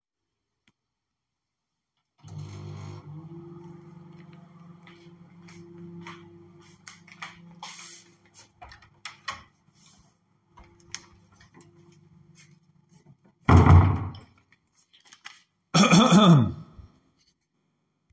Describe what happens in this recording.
I started the microwave, went to the door, opened it and the left the room. The microwave did not stop during the recording.